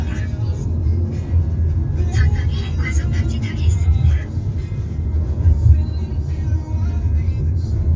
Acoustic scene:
car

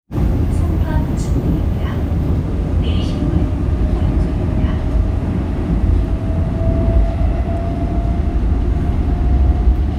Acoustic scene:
subway train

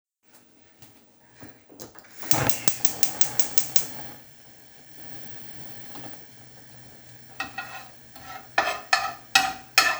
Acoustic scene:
kitchen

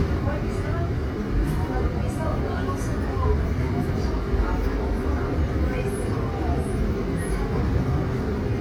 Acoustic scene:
subway train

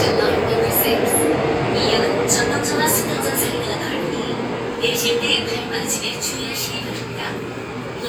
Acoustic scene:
subway train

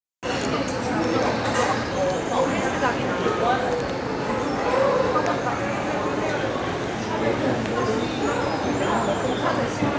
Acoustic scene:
cafe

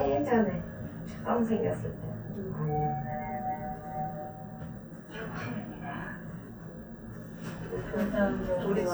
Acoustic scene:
elevator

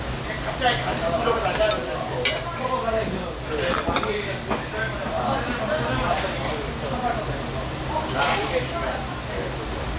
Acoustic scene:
restaurant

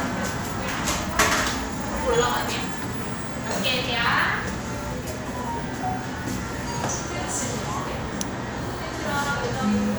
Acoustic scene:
crowded indoor space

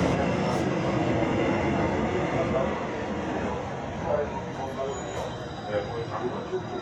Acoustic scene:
subway train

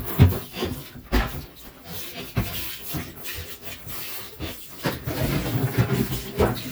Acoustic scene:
kitchen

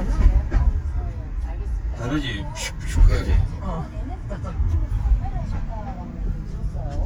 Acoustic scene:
car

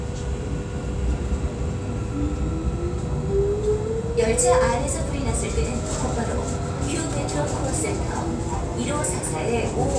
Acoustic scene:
subway train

